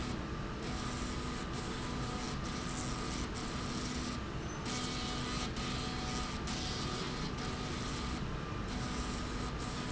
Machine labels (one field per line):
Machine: slide rail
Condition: abnormal